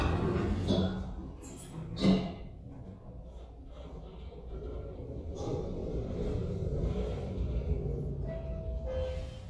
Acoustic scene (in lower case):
elevator